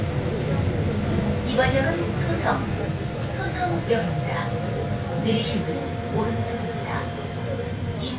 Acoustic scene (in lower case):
subway train